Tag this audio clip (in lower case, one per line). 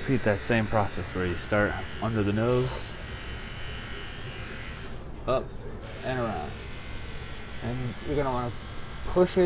cutting hair with electric trimmers